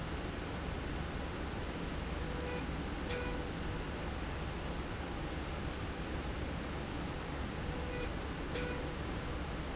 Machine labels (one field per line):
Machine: slide rail